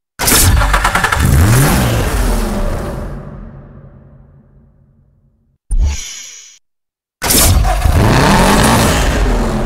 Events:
0.1s-1.3s: engine starting
0.2s-3.2s: medium engine (mid frequency)
1.1s-3.2s: vroom
3.2s-5.5s: reverberation
5.7s-6.6s: sound effect
7.2s-9.6s: medium engine (mid frequency)
7.2s-7.5s: engine starting
7.5s-9.6s: vroom

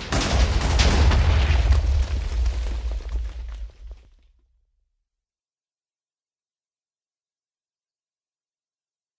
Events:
0.0s-4.4s: explosion
0.0s-4.9s: video game sound

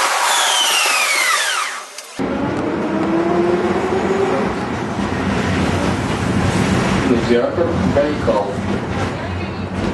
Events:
0.0s-1.9s: air brake
0.0s-9.9s: bus
7.0s-7.5s: male speech
7.7s-8.6s: male speech
9.2s-9.9s: woman speaking

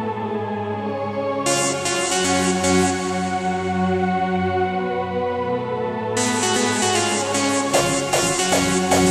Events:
0.0s-9.1s: music

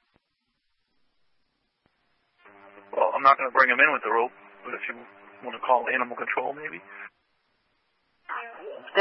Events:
0.0s-2.3s: background noise
0.1s-0.2s: tick
1.8s-1.9s: tick
2.4s-7.1s: mechanisms
2.9s-4.3s: man speaking
2.9s-9.0s: conversation
4.6s-5.0s: man speaking
5.4s-7.1s: man speaking
7.1s-8.3s: background noise
8.2s-9.0s: mechanisms
8.3s-8.9s: female speech

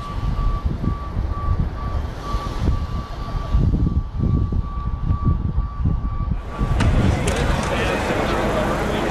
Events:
0.0s-0.6s: alarm
0.0s-7.6s: wind noise (microphone)
0.0s-9.1s: car
0.8s-1.6s: alarm
1.7s-2.5s: alarm
2.7s-3.6s: alarm
3.8s-6.8s: alarm
4.7s-4.8s: tick
6.7s-6.9s: tick
6.8s-9.1s: speech babble
7.2s-7.8s: generic impact sounds

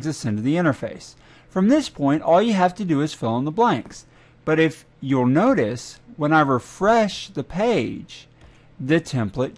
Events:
0.0s-1.2s: man speaking
0.0s-9.5s: mechanisms
1.2s-1.3s: clicking
1.2s-1.5s: breathing
1.5s-4.1s: man speaking
4.1s-4.4s: breathing
4.5s-4.9s: man speaking
5.0s-6.0s: man speaking
6.2s-8.4s: man speaking
8.4s-8.5s: clicking
8.4s-8.7s: breathing
8.8s-9.5s: man speaking

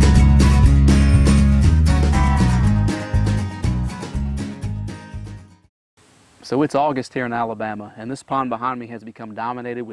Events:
0.0s-5.6s: music
6.0s-9.9s: background noise
6.4s-7.8s: man speaking
7.9s-9.9s: man speaking

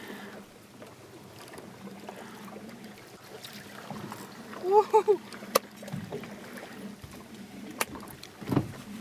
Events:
0.0s-0.4s: generic impact sounds
0.0s-9.0s: speedboat
0.7s-0.9s: generic impact sounds
1.2s-9.0s: liquid
4.0s-4.2s: generic impact sounds
4.4s-4.6s: generic impact sounds
4.5s-5.2s: giggle
5.3s-5.6s: generic impact sounds
7.7s-7.9s: generic impact sounds
8.2s-8.6s: generic impact sounds

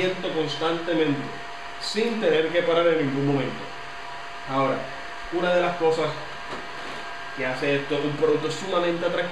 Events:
0.0s-1.3s: man speaking
0.0s-9.3s: mechanisms
1.8s-3.5s: man speaking
4.5s-4.9s: man speaking
5.2s-6.1s: man speaking
6.5s-6.5s: tick
6.7s-7.1s: surface contact
7.4s-9.3s: man speaking
7.6s-7.6s: tick

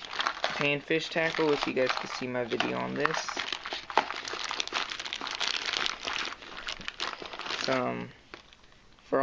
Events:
0.0s-0.6s: crinkling
0.0s-9.2s: background noise
0.5s-3.3s: man speaking
0.9s-1.6s: crinkling
1.9s-2.2s: crinkling
2.5s-2.6s: generic impact sounds
2.6s-7.8s: crinkling
3.7s-3.8s: surface contact
3.9s-4.1s: generic impact sounds
7.6s-8.1s: man speaking
8.3s-8.4s: generic impact sounds

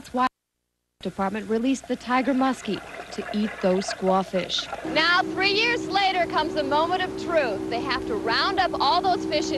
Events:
0.0s-1.8s: woman speaking
0.0s-9.5s: background noise
0.0s-9.5s: water
2.0s-3.6s: woman speaking
3.7s-9.5s: motorboat
3.9s-9.5s: woman speaking

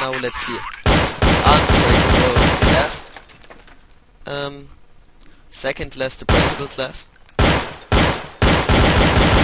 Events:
0.0s-0.8s: male speech
0.0s-9.4s: video game sound
0.8s-1.1s: gunfire
1.2s-3.0s: gunfire
1.4s-2.5s: male speech
2.6s-2.8s: male speech
2.7s-3.7s: shatter
4.2s-4.7s: male speech
5.2s-5.4s: human sounds
5.6s-7.0s: male speech
6.2s-6.6s: gunfire
7.1s-7.4s: generic impact sounds
7.4s-7.8s: gunfire
7.9s-8.3s: gunfire
8.4s-9.4s: gunfire

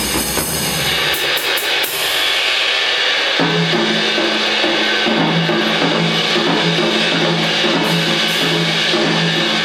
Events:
0.0s-9.6s: music

